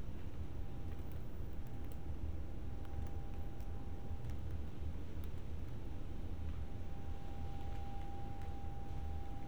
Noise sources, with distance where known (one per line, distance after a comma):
background noise